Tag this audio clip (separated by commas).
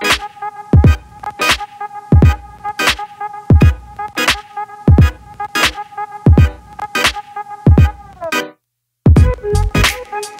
Music